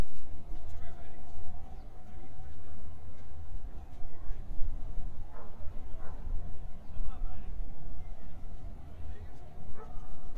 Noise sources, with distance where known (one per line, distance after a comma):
person or small group talking
dog barking or whining